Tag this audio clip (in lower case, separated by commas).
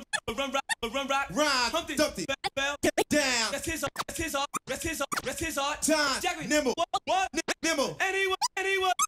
music, scratching (performance technique)